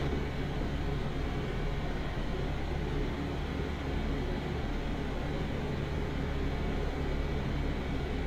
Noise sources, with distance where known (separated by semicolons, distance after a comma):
large-sounding engine, near